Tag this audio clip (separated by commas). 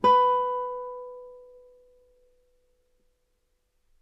Plucked string instrument, Music, Musical instrument, Guitar